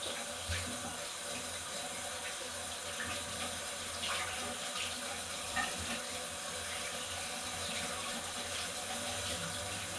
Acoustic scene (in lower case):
restroom